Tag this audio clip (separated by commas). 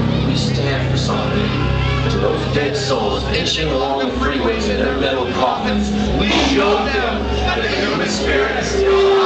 Music, Speech